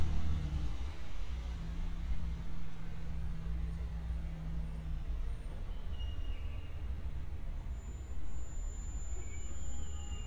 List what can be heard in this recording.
engine of unclear size